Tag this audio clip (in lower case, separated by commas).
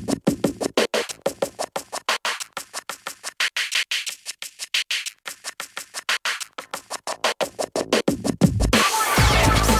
music, scratching (performance technique)